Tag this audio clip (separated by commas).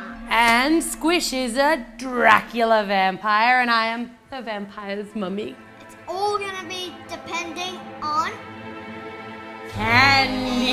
Music, woman speaking, Speech